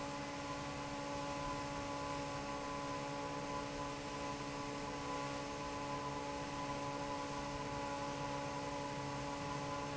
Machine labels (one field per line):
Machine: fan